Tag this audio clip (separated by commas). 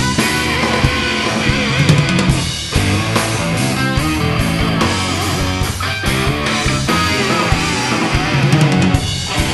Music, Musical instrument, Guitar